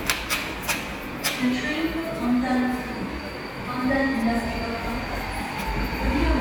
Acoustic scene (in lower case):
subway station